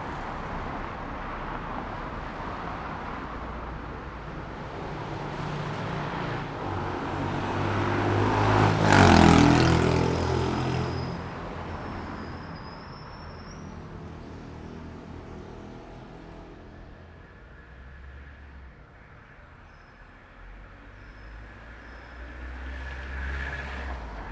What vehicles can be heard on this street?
car, motorcycle